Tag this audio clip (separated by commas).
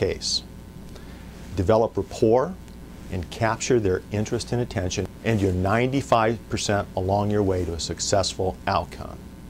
Speech